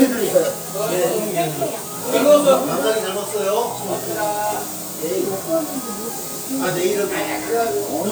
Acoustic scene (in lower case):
restaurant